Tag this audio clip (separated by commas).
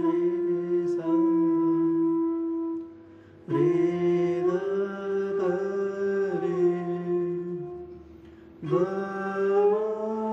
playing flute